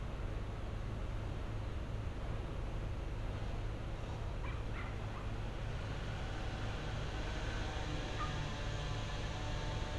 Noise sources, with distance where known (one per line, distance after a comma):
small or medium rotating saw, far
dog barking or whining, far